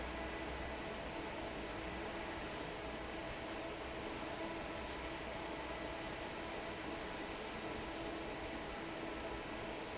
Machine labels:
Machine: fan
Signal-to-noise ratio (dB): 6 dB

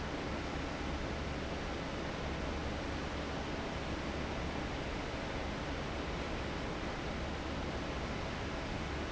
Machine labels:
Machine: fan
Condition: abnormal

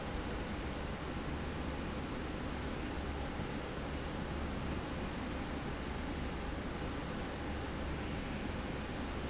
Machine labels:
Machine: slide rail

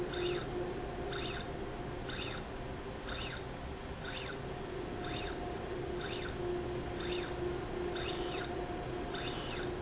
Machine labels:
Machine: slide rail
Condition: normal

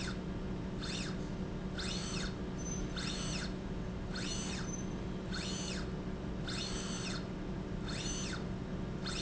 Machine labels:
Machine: slide rail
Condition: normal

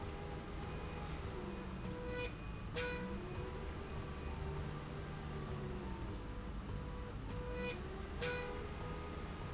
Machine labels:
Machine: slide rail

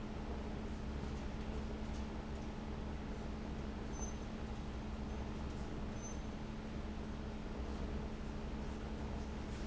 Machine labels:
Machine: fan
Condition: abnormal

